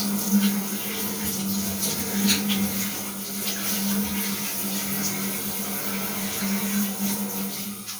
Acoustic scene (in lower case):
restroom